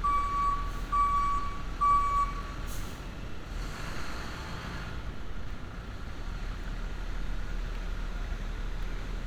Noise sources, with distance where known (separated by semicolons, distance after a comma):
large-sounding engine; reverse beeper